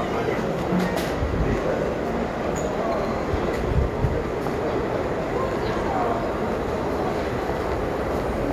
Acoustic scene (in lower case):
crowded indoor space